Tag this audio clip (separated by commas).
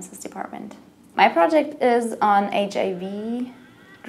Speech